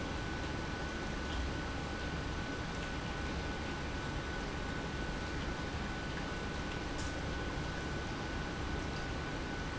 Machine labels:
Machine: pump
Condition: normal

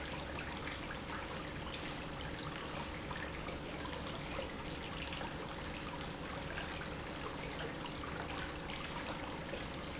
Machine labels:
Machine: pump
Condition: normal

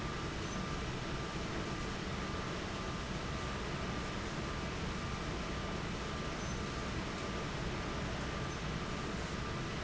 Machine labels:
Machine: fan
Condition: abnormal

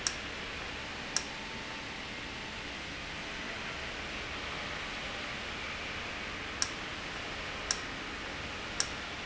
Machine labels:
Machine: valve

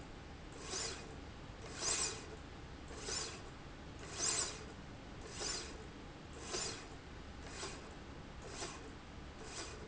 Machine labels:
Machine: slide rail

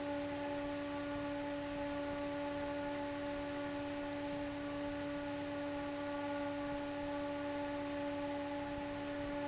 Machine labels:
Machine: fan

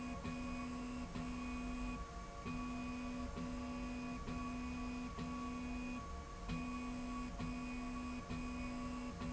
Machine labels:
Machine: slide rail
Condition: normal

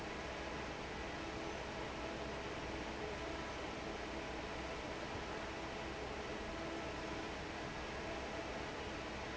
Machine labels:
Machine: fan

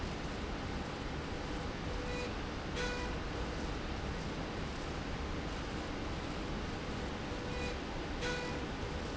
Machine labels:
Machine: slide rail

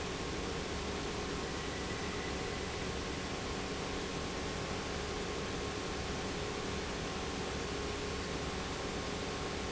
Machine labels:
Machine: pump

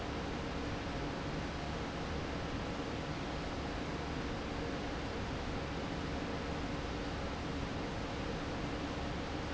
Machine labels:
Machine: fan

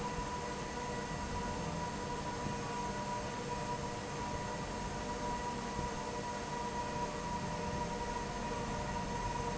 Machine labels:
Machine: fan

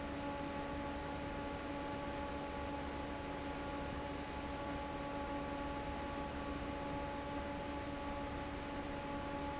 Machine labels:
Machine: fan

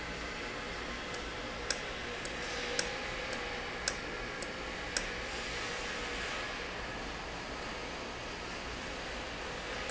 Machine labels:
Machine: valve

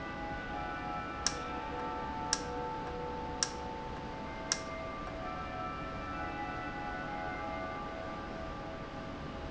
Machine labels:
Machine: valve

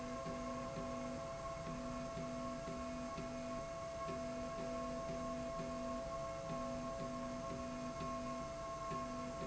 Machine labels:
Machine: slide rail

